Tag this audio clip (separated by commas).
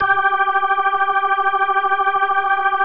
Music, Keyboard (musical), Organ, Musical instrument